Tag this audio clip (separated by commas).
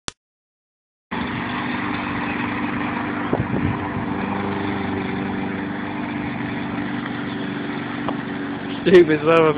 Lawn mower, outside, urban or man-made, Speech, Vehicle